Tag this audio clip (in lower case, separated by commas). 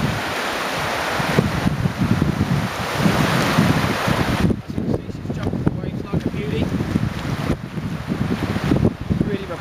speech